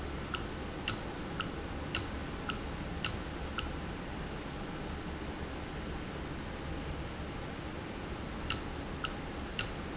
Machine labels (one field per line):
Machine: valve